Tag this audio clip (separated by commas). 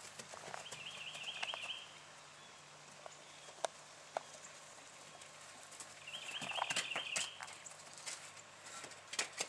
Horse, Animal, Clip-clop